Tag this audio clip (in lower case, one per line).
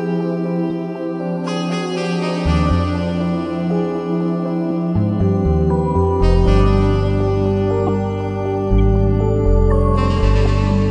music